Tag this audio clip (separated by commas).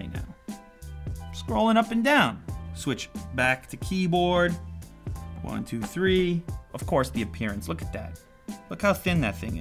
typing on typewriter